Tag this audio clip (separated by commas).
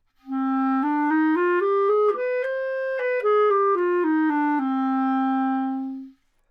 Music, Wind instrument, Musical instrument